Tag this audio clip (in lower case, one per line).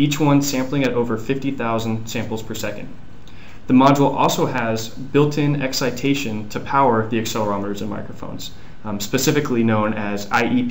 speech